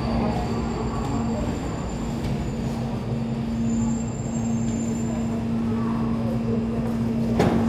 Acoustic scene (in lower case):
subway station